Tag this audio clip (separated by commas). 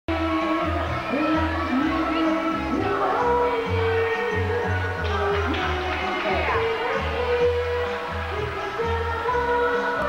Music, Speech